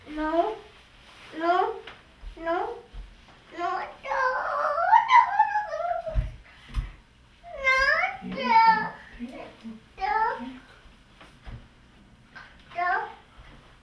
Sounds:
human voice, kid speaking, crying, speech

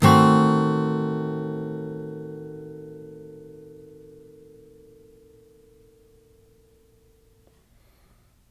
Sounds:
music, strum, acoustic guitar, guitar, musical instrument, plucked string instrument

